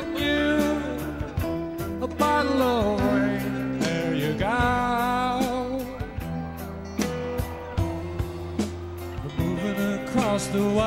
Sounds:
Music

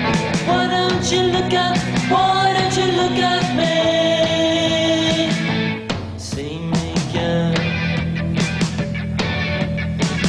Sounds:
Rock music, Singing, Ska, Music

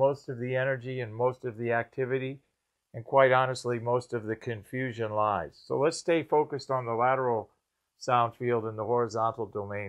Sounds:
Speech

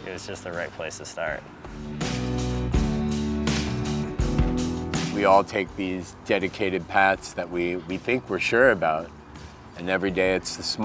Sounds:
Music, Speech

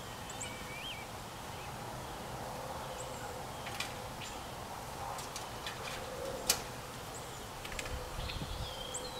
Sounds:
Animal, Bird

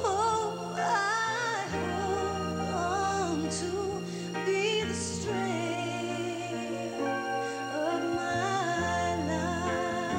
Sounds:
Music

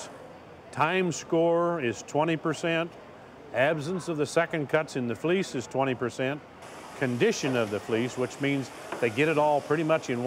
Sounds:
Speech

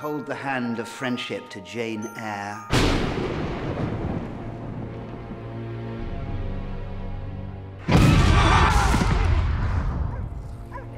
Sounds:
Speech, Music

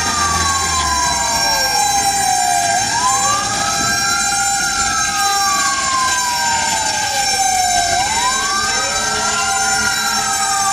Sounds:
fire truck (siren), Vehicle, Truck, Motor vehicle (road)

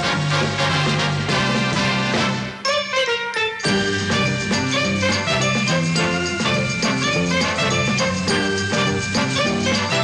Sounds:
Music

